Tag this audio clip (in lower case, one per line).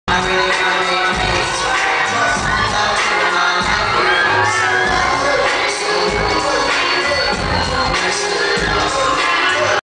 male singing
music